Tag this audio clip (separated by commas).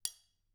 home sounds, Cutlery